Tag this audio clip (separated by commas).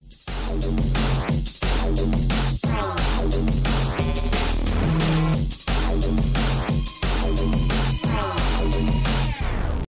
Music